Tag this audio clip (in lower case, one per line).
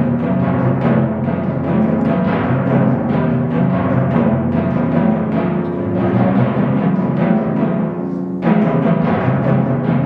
percussion
drum
music
musical instrument
timpani